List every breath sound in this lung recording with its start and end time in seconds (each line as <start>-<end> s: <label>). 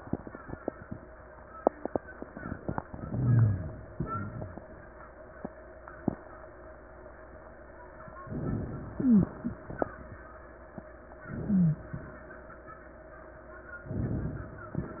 2.90-3.90 s: inhalation
3.08-3.68 s: rhonchi
3.90-4.68 s: exhalation
4.04-4.64 s: rhonchi
8.26-9.38 s: inhalation
8.92-9.32 s: wheeze
11.26-12.12 s: inhalation
11.46-11.86 s: wheeze
13.88-14.74 s: inhalation